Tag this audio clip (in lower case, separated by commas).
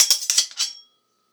cutlery, home sounds